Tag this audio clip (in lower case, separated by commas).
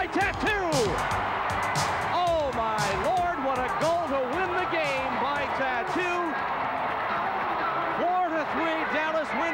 music, speech